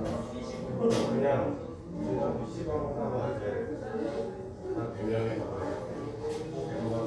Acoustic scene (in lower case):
crowded indoor space